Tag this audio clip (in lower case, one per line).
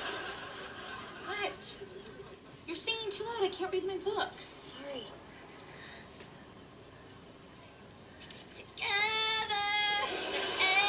female singing
speech